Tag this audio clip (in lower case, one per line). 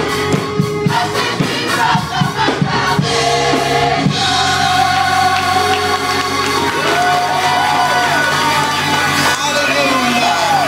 choir
music
singing